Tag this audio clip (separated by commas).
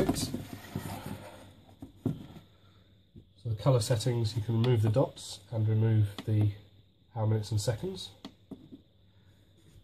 Speech